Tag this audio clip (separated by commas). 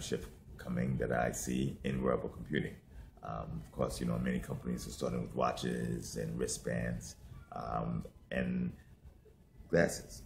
Speech